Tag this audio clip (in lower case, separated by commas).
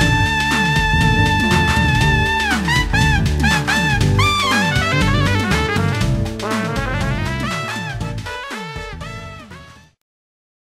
music